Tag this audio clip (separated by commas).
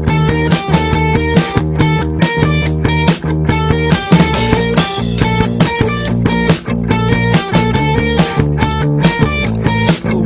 Music